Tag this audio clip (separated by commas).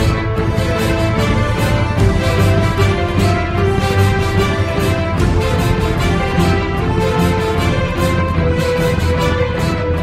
Music, Theme music